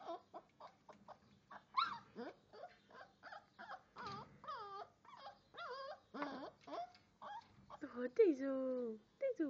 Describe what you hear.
A dog is whimpering then a woman begins to talk